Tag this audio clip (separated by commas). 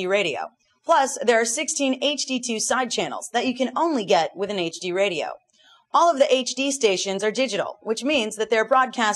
Speech